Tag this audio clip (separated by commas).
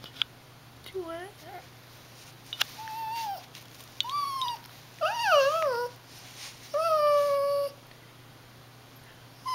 dog whimpering